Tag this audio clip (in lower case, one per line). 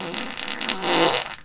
fart